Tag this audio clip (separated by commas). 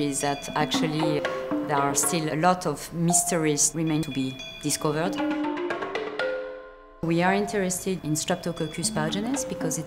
Percussion